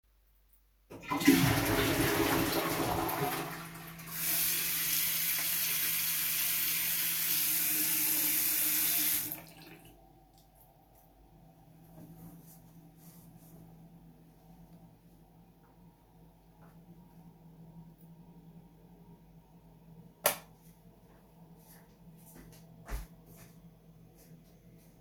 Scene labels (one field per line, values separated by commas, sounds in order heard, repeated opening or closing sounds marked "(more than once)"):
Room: bathroom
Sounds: toilet flushing, running water, light switch, footsteps